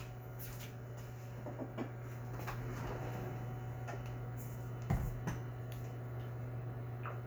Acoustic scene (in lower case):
kitchen